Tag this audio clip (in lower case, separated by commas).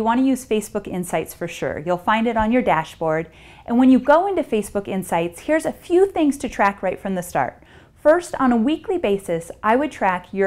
speech